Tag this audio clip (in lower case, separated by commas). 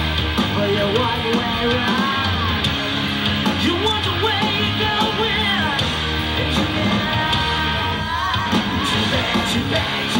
singing, music